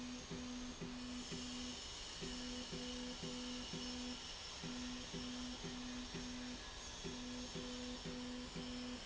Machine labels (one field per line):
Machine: slide rail